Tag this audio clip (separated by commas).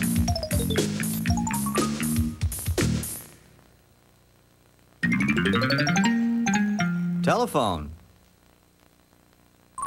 Music, Speech